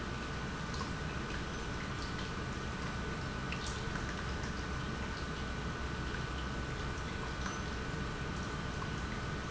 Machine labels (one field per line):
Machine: pump